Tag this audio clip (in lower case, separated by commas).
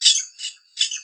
bird, animal, wild animals, bird call